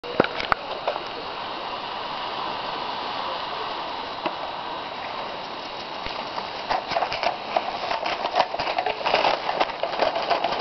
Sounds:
Speech, Train

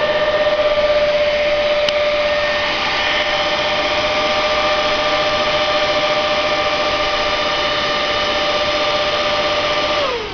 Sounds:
inside a small room

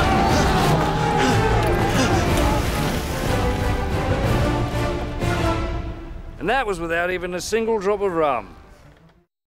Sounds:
Speech, Liquid, Music

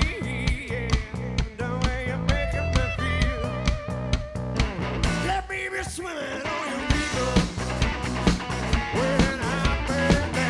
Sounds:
Music

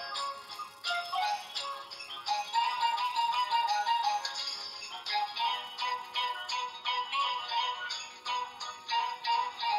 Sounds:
Music

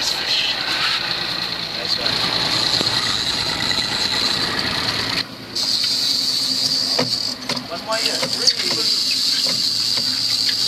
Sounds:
Engine, Idling, Speech, outside, rural or natural

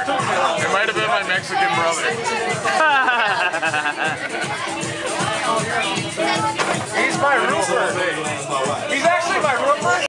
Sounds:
Speech, Music

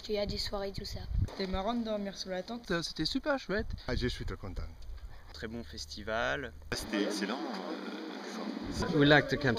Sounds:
Speech

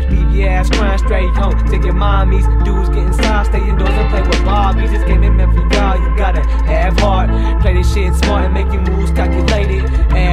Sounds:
Music, Pop music

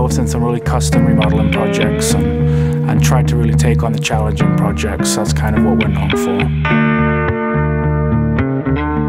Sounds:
Speech, Music

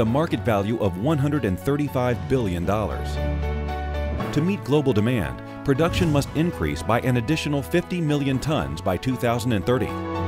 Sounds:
Music, Speech

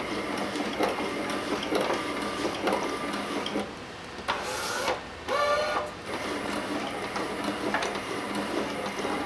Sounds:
inside a small room

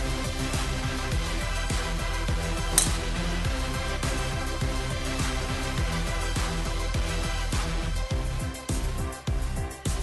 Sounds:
Music

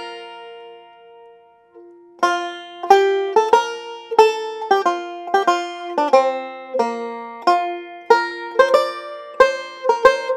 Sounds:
Mandolin, Music

